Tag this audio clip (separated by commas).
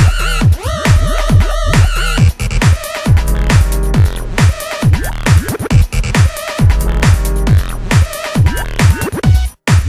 Music, Techno